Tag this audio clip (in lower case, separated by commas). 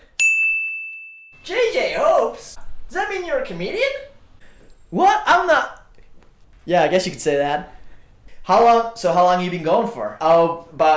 speech, inside a large room or hall